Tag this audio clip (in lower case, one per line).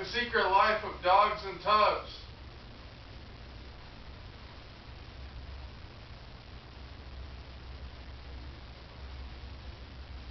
speech